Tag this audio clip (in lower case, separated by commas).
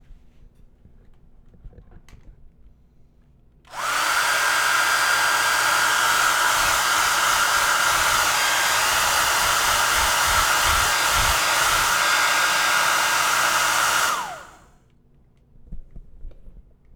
domestic sounds